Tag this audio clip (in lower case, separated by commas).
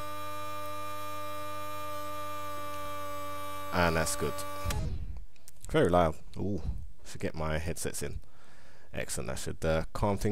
hum